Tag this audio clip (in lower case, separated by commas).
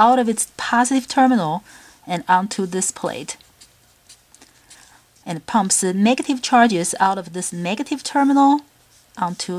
speech